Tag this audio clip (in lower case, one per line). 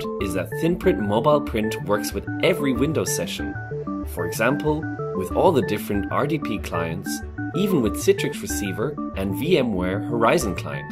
speech
music